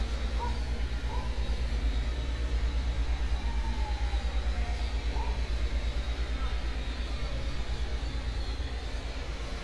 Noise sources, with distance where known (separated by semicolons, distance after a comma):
person or small group talking; dog barking or whining